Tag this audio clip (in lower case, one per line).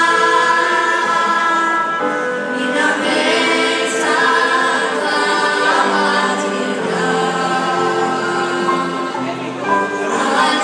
music
speech
choir